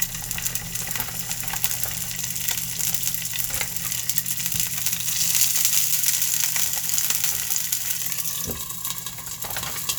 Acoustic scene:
kitchen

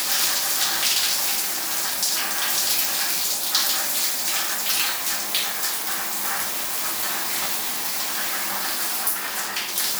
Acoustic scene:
restroom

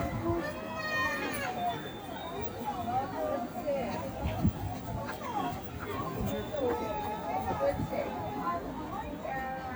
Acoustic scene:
residential area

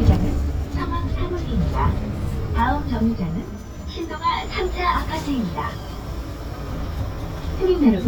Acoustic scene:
bus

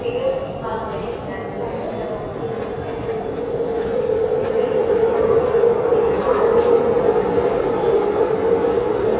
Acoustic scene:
subway station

